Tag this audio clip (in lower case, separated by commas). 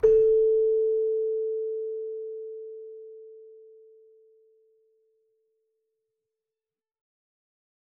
music, musical instrument, keyboard (musical)